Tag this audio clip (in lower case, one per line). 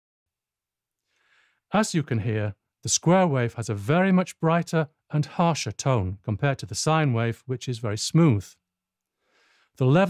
speech